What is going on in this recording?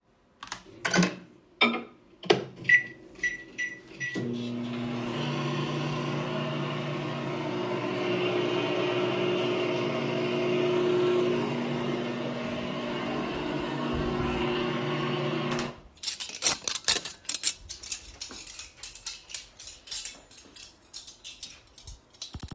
I heated up some food in the microwave and then washed some dishes. The sound of the microwave beeping and the clattering of cutlery and dishes were captured in the recording along with some rustling of my clothes as I moved around the kitchen.